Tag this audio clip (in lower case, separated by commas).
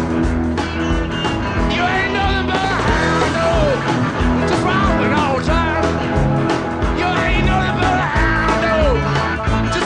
music